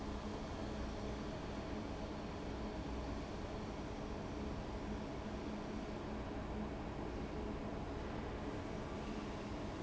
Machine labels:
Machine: fan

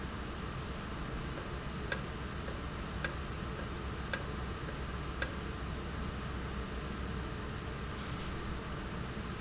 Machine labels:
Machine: valve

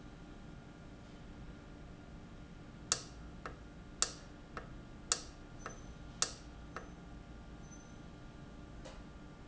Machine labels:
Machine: valve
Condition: normal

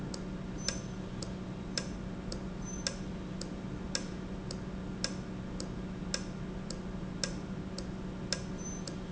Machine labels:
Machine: valve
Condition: normal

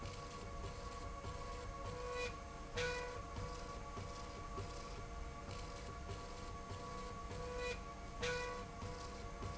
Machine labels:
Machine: slide rail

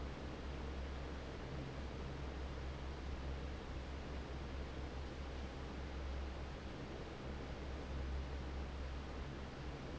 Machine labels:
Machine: fan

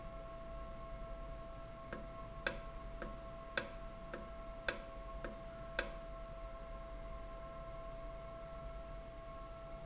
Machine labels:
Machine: valve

